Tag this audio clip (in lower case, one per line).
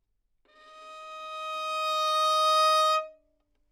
bowed string instrument
musical instrument
music